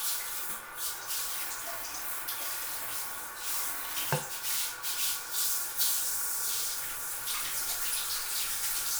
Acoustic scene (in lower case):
restroom